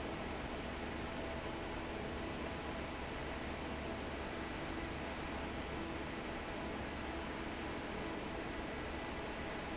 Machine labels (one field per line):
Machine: fan